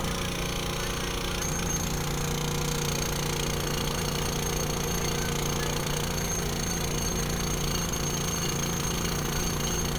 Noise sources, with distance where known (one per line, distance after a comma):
unidentified impact machinery, near